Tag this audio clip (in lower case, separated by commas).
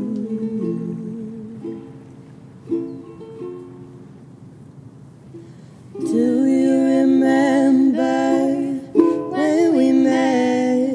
music